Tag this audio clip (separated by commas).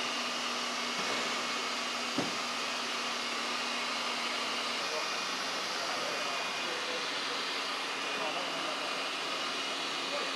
Speech